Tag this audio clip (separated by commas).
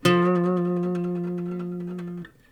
Music, Plucked string instrument, Acoustic guitar, Guitar, Musical instrument